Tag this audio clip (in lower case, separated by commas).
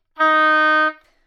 wind instrument, music, musical instrument